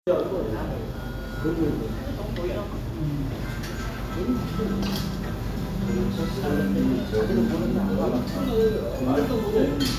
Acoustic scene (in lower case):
restaurant